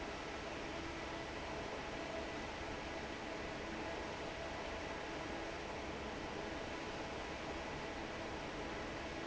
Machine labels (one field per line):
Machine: fan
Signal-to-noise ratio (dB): 6 dB